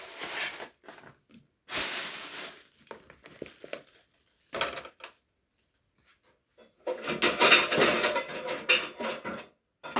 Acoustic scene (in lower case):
kitchen